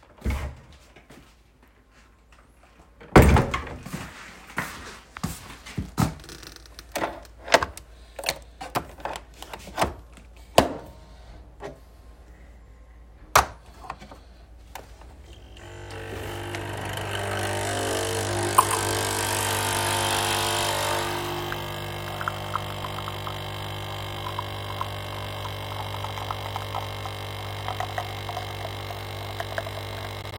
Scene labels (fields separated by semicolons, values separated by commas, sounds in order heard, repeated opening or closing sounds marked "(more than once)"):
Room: kitchen; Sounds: door (more than once), footsteps, coffee machine